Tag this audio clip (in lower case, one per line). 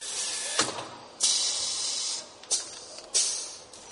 mechanisms